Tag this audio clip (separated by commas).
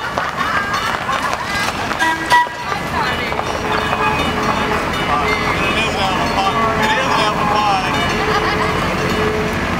Speech, Vehicle